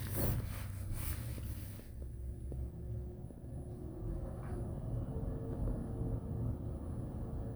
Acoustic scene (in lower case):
elevator